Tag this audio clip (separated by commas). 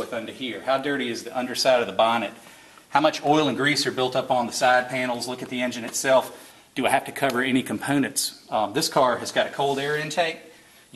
Speech